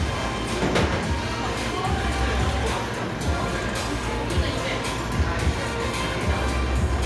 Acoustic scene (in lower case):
cafe